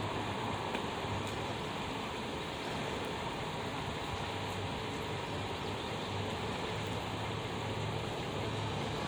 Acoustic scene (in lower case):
street